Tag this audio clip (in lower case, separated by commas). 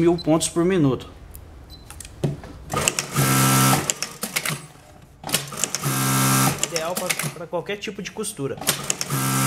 using sewing machines